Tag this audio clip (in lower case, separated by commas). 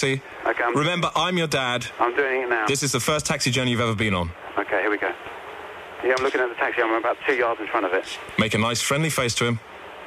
speech